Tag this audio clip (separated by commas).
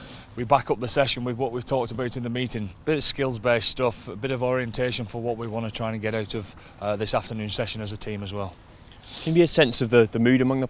Speech